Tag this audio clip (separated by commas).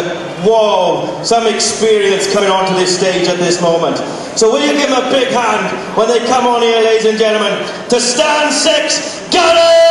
Speech